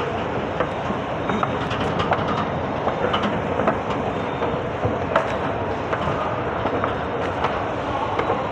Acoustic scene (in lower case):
subway station